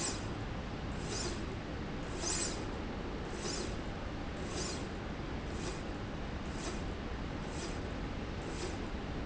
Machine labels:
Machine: slide rail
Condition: normal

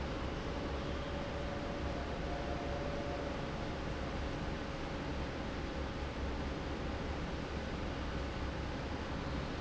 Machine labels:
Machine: fan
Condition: normal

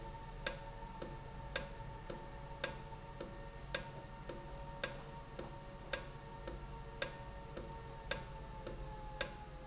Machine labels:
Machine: valve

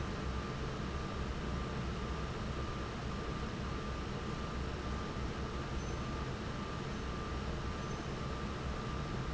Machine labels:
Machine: fan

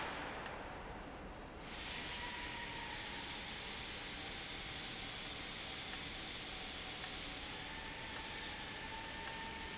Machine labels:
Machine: valve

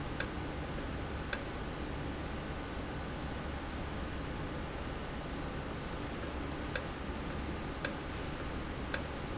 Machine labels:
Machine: valve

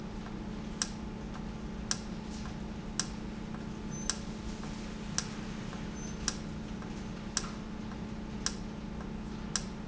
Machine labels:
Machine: valve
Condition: normal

